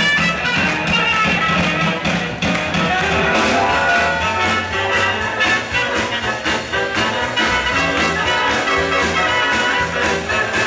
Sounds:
speech, music

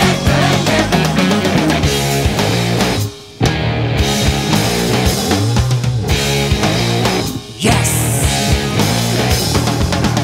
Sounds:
music

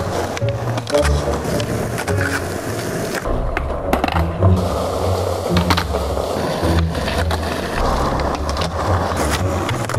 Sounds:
music, skateboarding, skateboard

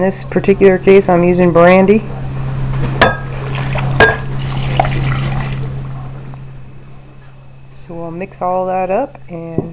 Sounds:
inside a small room, speech

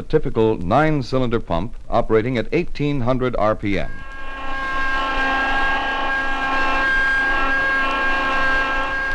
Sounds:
rustle, speech

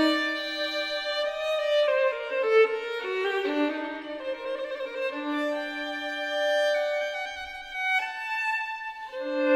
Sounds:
musical instrument, fiddle, music

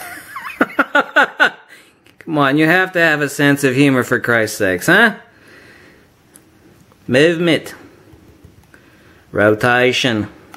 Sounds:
inside a small room, speech

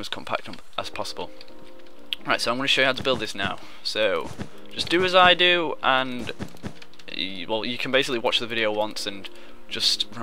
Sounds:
music, speech

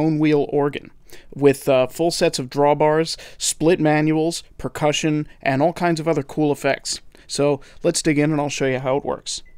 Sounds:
speech

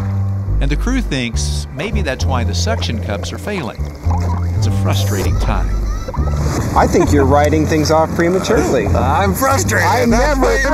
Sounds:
music, speech

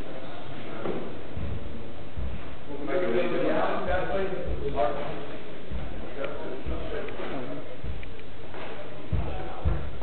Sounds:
music

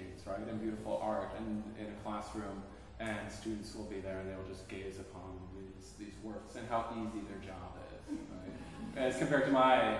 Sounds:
speech

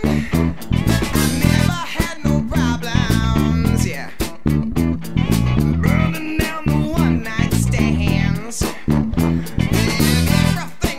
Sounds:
music, dance music, middle eastern music

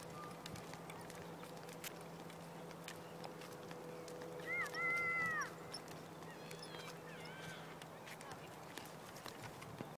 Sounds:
speech, animal, pets

